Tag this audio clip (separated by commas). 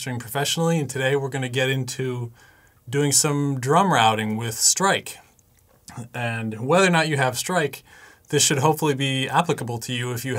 Speech